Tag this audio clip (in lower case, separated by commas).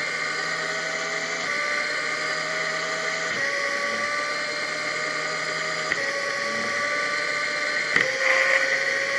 vehicle, bicycle